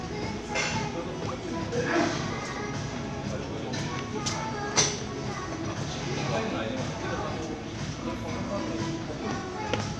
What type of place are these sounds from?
crowded indoor space